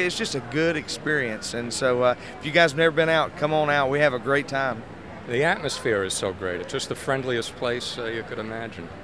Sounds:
speech

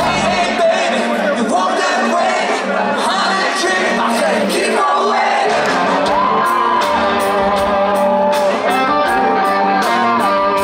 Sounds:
music, speech

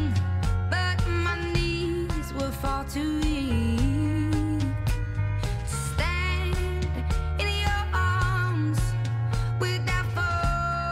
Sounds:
music

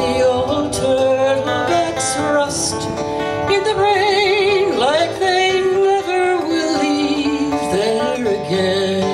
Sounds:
music, female singing

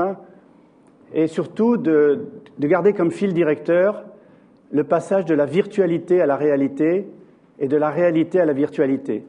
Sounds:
speech

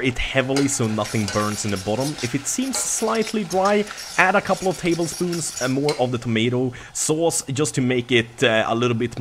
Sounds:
sizzle, frying (food), stir

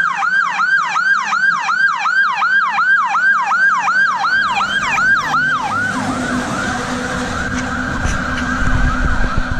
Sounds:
fire truck siren

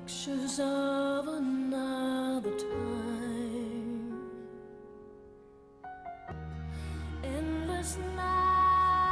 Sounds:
music, lullaby

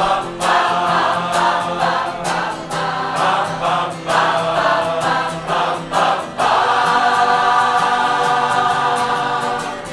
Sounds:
singing choir

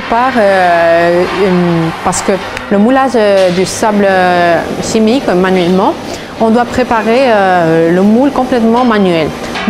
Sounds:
speech

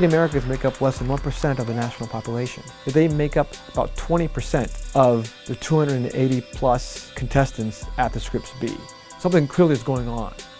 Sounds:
speech, music

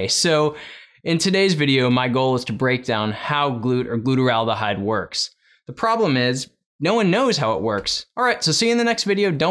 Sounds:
speech

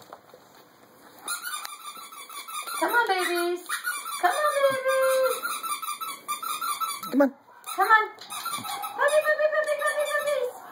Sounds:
dog, speech, domestic animals

